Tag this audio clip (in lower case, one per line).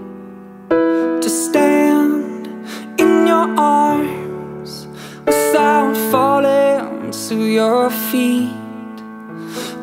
music